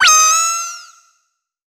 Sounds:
animal

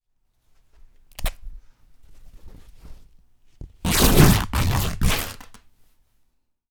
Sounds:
tearing

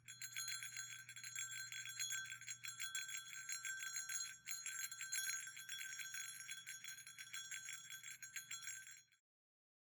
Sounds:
bell

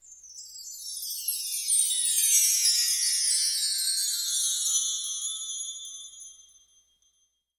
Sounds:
chime
wind chime
bell

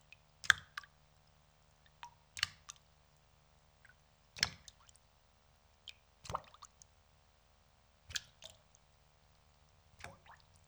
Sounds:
rain
water
raindrop

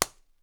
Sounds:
hands
clapping

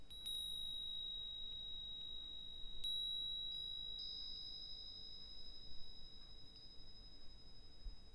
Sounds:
chime
bell

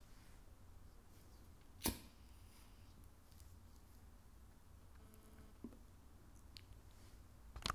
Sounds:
fire

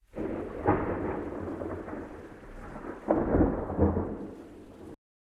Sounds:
thunderstorm
thunder

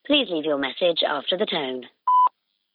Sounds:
alarm
telephone
human voice

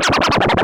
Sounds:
musical instrument
music
scratching (performance technique)

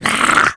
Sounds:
human voice

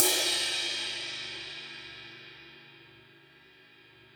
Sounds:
crash cymbal
cymbal
music
percussion
musical instrument

